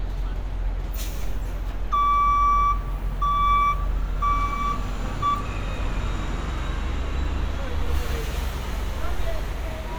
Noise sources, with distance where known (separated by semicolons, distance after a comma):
large-sounding engine, near; reverse beeper, near